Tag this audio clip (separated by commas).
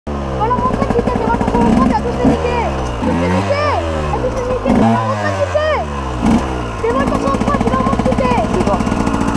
Speech